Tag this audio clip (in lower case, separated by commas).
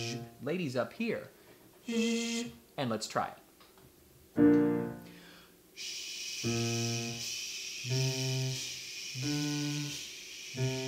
music, piano, keyboard (musical), musical instrument, speech